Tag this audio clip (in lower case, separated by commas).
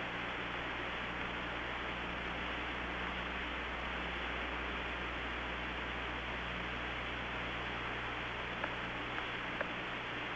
television